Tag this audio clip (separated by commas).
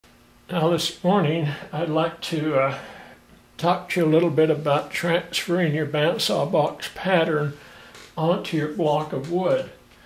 Speech, inside a small room